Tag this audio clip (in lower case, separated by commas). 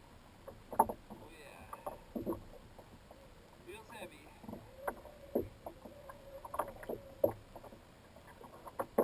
boat, vehicle, rowboat, speech